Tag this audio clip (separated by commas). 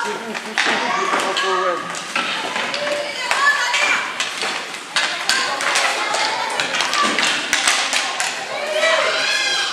playing hockey